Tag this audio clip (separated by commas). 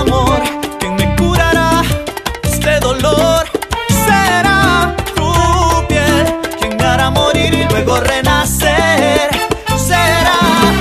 Music, Soundtrack music